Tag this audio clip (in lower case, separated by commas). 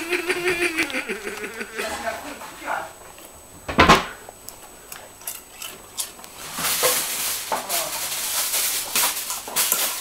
speech